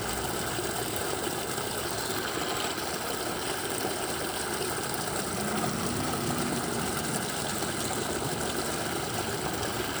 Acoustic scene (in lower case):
park